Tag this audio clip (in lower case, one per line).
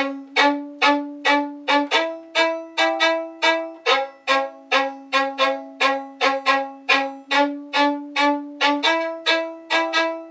music
violin
musical instrument